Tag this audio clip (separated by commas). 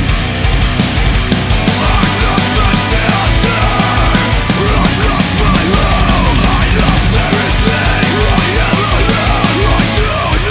Music